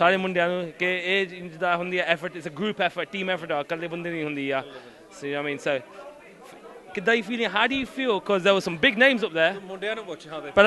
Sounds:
speech

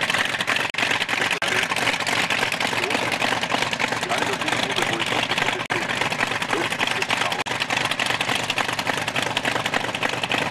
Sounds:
speech
vehicle

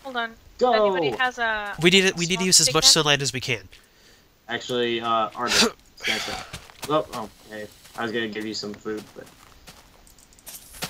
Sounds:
speech

